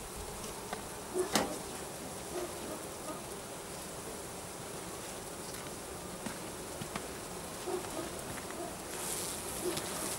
Bees are buzzing